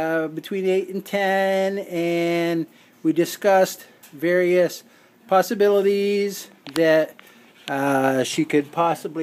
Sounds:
speech

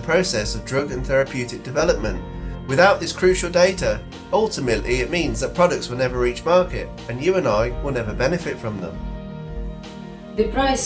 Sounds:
music, speech

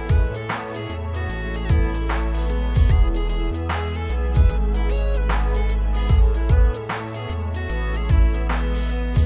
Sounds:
music

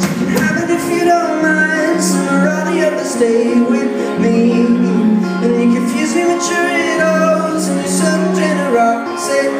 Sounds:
music

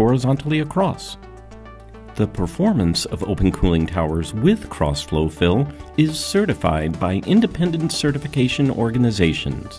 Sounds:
speech, music

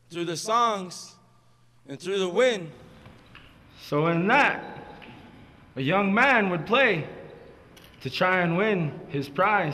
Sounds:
speech

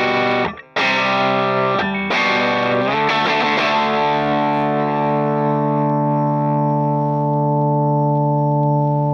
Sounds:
plucked string instrument, distortion, effects unit, guitar, music, musical instrument

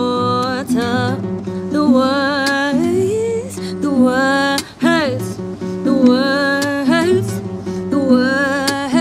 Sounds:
music

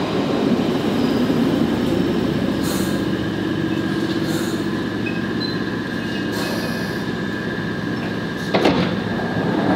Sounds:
metro

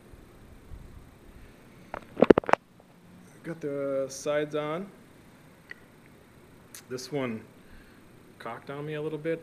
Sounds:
speech

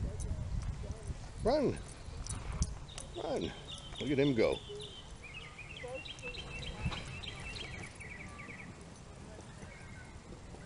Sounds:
speech

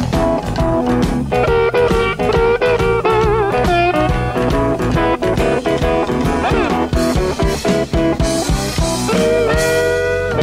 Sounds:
music

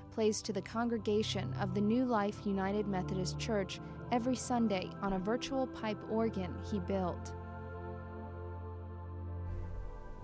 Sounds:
music, theme music, speech

